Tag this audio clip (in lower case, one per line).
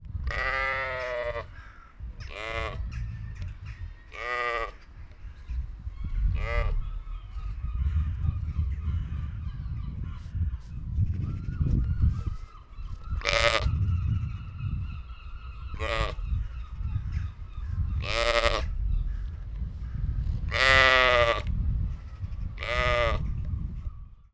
livestock
animal